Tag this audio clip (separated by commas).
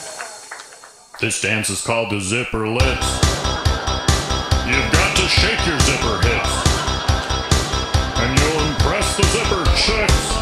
Music, Speech